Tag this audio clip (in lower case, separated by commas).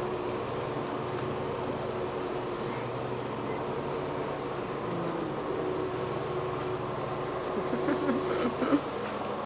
vehicle